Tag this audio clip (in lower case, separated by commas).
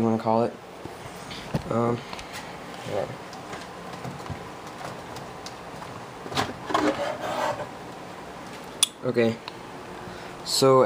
speech